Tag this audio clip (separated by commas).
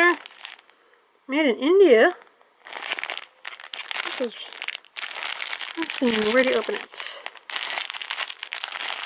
Crumpling, Speech